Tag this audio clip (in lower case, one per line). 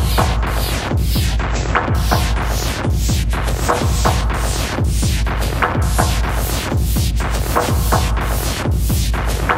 music